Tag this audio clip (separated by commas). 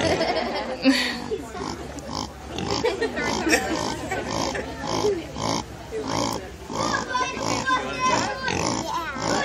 Speech